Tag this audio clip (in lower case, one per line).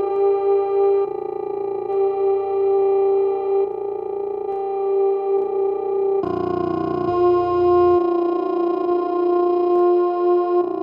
music
effects unit